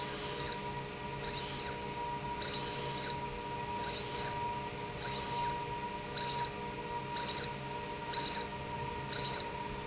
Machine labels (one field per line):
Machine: slide rail